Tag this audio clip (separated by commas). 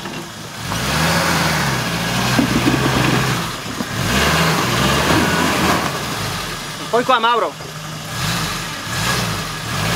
Speech, Vehicle